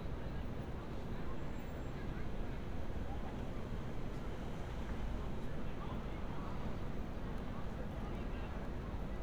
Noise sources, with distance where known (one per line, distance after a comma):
person or small group talking, far